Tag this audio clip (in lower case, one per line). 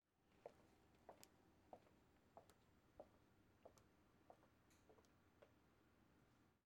footsteps